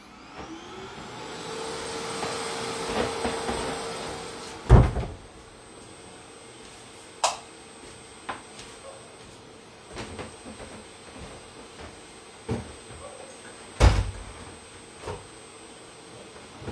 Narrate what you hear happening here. As the vacuum cleaner got turned on, I closed the door, turned off the light in the hallway and closed the window.